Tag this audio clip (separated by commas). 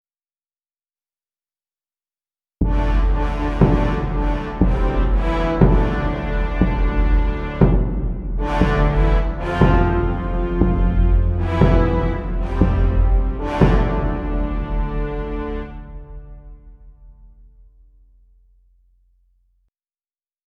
Musical instrument, Music, Brass instrument